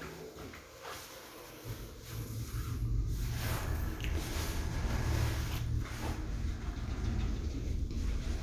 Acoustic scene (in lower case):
elevator